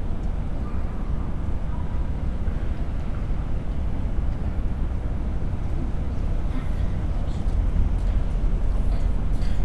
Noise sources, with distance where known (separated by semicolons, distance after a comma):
unidentified human voice, near